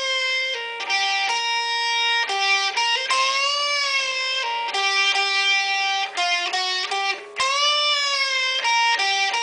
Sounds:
Plucked string instrument, Musical instrument, Music, Electric guitar, Guitar

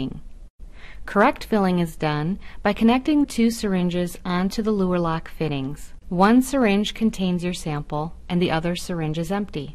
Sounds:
Speech

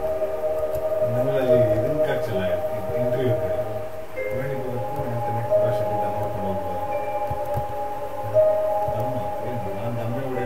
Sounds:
Music, Speech

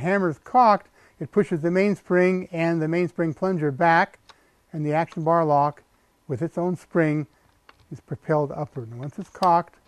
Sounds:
Speech

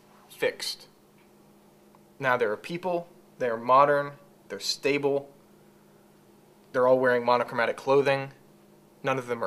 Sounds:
Speech, inside a small room

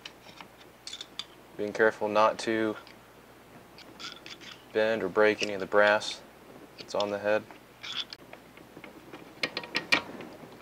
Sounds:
Speech

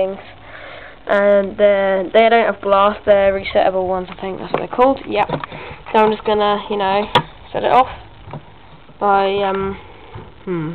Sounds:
Speech

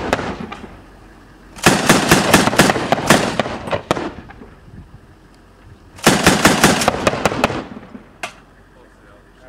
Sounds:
firing cannon

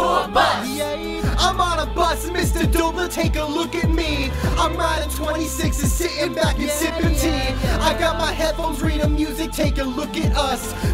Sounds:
Music

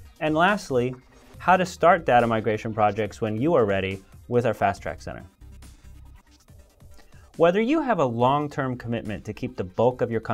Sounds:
Music, Speech

